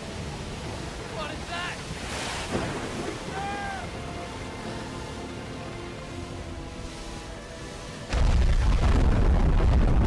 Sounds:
outside, rural or natural, Music, Speech

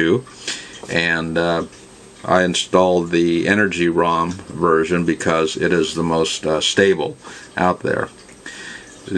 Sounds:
Speech

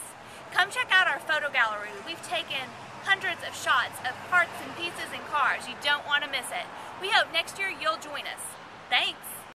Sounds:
Speech

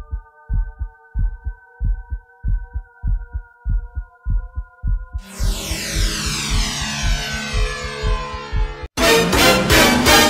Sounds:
Music

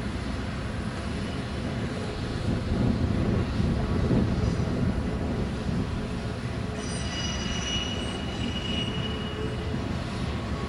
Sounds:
Vehicle

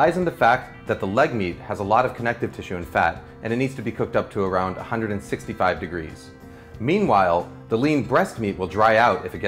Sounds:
Speech, Music

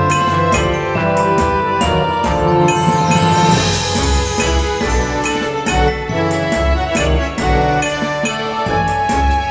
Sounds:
Background music, Music

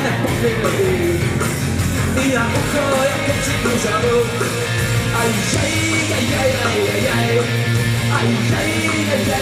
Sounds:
Music

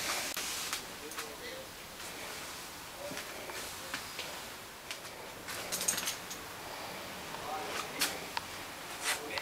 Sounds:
Speech

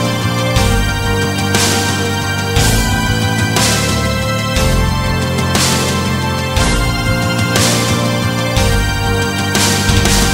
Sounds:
Music

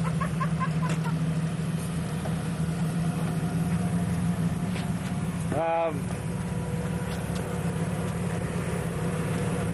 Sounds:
Vehicle, Truck, Speech, outside, rural or natural

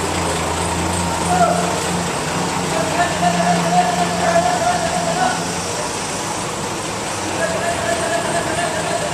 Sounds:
Vehicle, Truck, Speech

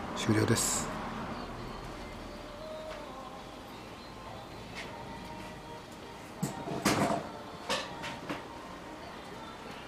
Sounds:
Speech, Music

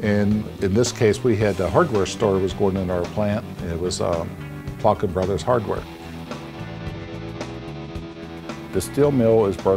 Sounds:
Speech, Music

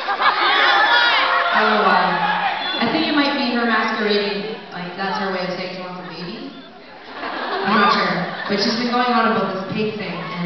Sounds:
Speech

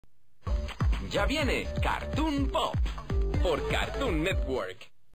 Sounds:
Speech, Music

